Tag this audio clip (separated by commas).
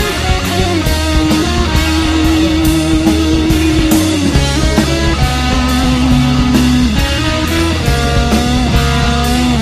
Music, Psychedelic rock